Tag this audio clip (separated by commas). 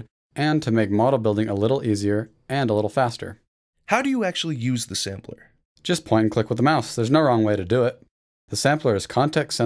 Speech